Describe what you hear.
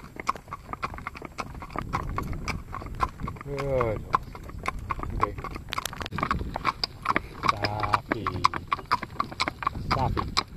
Hourses walking and a man talking